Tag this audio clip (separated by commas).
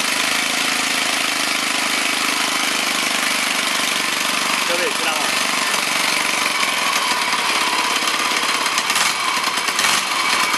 Vehicle, Speech